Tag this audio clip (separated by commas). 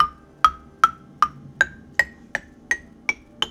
Mallet percussion, Music, Percussion, Marimba, Musical instrument